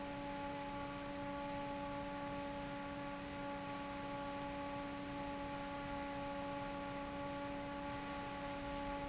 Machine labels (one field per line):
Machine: fan